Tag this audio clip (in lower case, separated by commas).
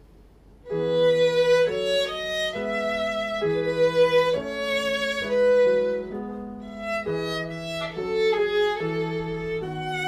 musical instrument, music, fiddle